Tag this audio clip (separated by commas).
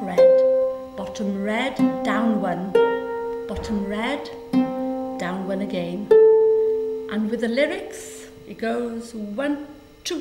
Music, Speech